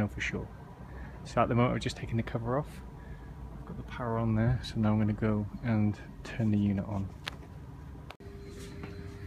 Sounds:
Speech

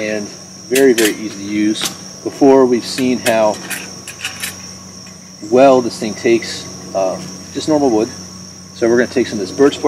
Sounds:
Speech, outside, rural or natural

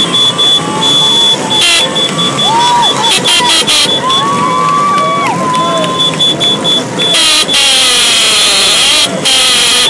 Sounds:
Speech, Motorcycle

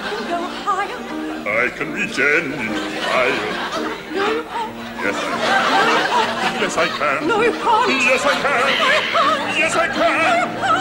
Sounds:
Male singing, Female singing, Music

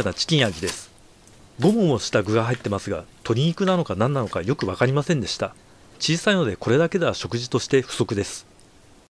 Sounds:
Speech

